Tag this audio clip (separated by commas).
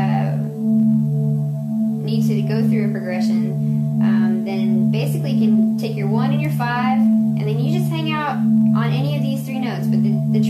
Speech, Music, Musical instrument, Keyboard (musical), Electric piano, Piano